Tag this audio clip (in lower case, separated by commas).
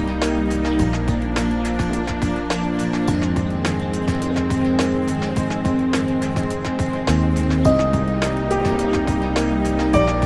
music